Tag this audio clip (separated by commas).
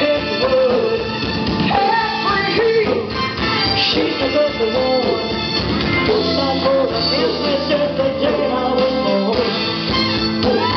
Music, Female singing